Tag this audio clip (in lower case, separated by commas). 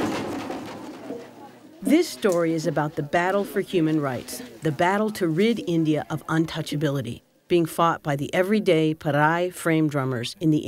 drum, speech, music, musical instrument